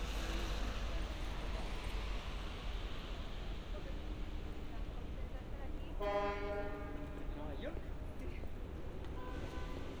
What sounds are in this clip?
medium-sounding engine, car horn, person or small group talking